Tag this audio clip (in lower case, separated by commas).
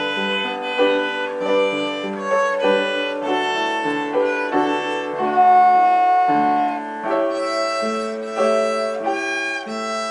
music, musical instrument, violin